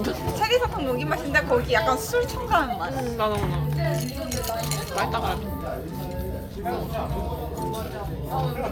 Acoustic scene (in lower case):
crowded indoor space